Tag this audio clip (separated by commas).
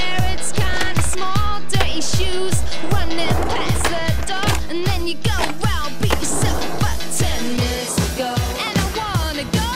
Skateboard, Music